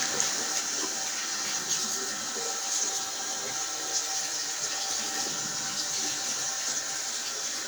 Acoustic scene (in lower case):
restroom